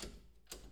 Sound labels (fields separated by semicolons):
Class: door; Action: opening; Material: metal